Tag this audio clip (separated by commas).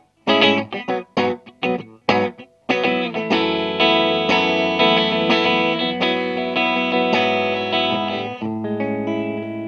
Plucked string instrument, Music, Musical instrument, Guitar, inside a small room